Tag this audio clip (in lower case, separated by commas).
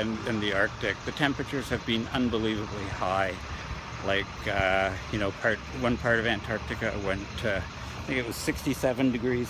outside, urban or man-made, speech